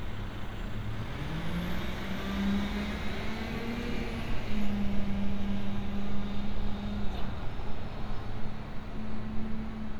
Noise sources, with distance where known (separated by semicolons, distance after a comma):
large-sounding engine